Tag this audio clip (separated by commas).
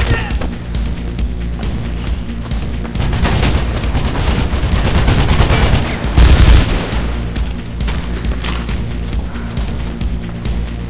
Music